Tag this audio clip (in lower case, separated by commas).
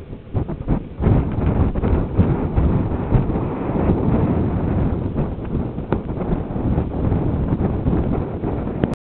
wind noise (microphone), wind noise